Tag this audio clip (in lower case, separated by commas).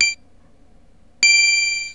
keyboard (musical), music, musical instrument